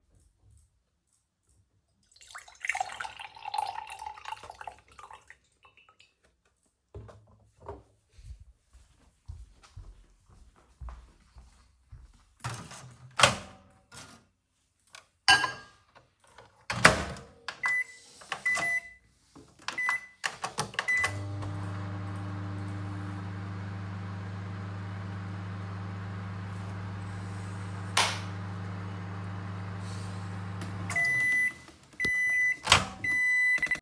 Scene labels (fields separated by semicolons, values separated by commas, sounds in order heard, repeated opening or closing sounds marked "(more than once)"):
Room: kitchen; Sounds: footsteps, microwave, cutlery and dishes